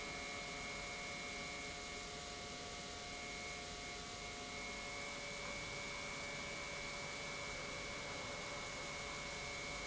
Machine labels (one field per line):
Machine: pump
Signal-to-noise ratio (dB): 6 dB